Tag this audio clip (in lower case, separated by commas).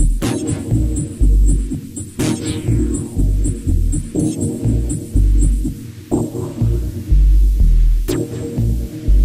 music, house music